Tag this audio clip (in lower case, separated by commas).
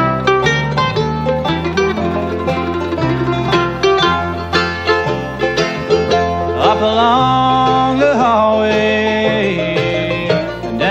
singing, musical instrument, country, guitar, bluegrass, music